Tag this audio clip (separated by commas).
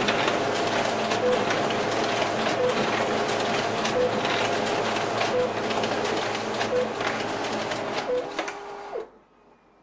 Printer